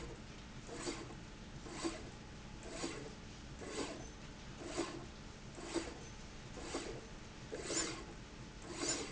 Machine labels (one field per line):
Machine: slide rail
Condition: abnormal